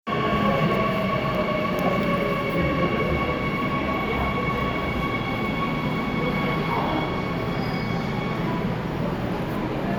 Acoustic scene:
subway station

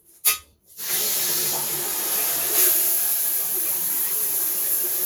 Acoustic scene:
restroom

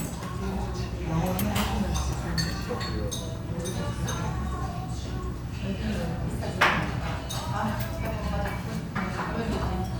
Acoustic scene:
restaurant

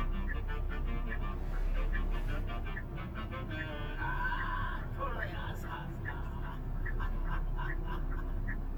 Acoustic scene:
car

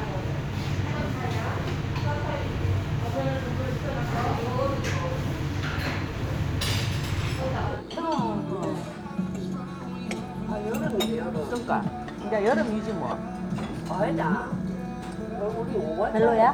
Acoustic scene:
restaurant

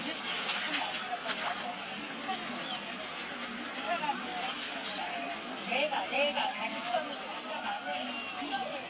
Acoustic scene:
park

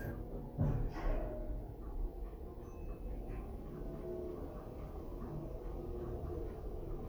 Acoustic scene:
elevator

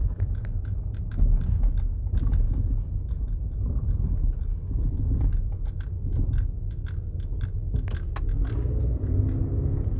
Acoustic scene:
car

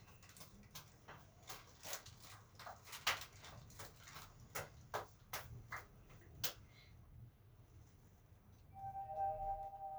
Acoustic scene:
elevator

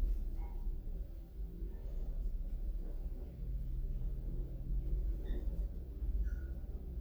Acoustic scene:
elevator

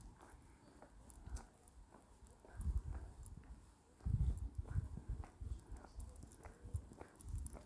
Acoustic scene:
park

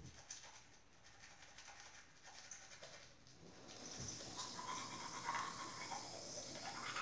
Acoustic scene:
restroom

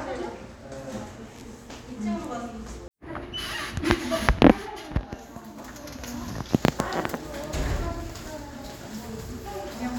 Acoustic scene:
crowded indoor space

